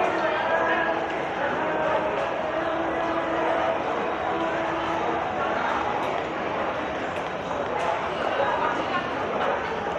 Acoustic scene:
subway station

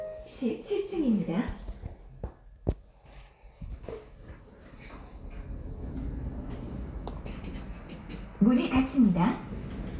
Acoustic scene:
elevator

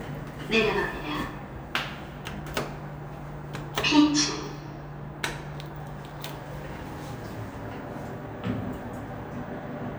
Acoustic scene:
elevator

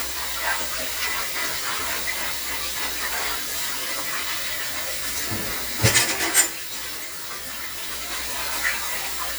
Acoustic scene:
kitchen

